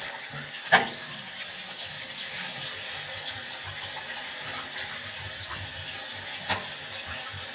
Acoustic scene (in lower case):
restroom